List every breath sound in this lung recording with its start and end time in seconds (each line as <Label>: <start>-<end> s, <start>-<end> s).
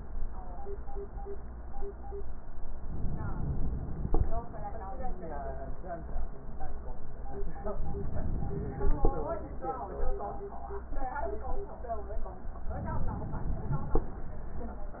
Inhalation: 2.70-4.14 s, 7.61-9.05 s, 12.69-14.06 s